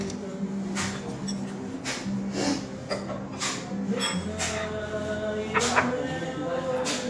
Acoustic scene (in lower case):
restaurant